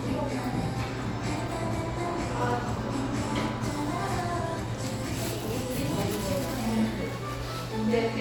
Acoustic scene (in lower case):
cafe